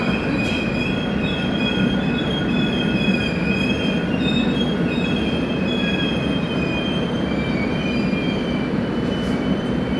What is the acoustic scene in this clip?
subway station